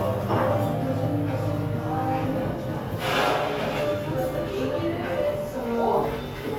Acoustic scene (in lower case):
cafe